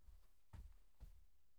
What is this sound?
footsteps on carpet